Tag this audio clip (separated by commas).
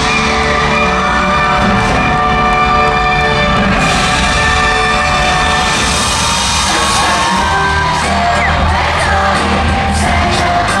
Music